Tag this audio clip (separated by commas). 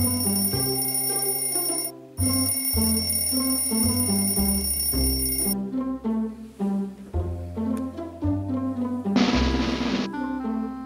inside a small room, Music